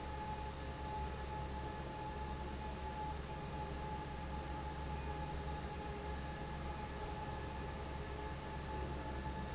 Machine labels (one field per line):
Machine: fan